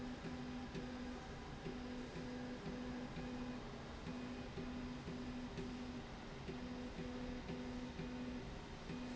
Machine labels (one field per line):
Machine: slide rail